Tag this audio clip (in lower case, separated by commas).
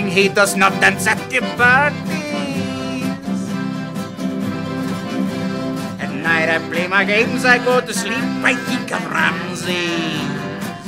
male singing, music